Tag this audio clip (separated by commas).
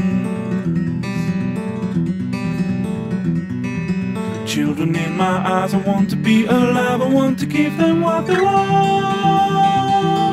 Music